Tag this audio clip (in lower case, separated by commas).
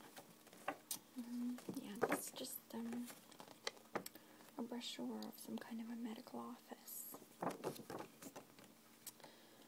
speech